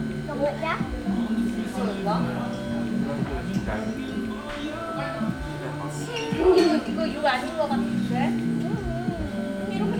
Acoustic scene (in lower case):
crowded indoor space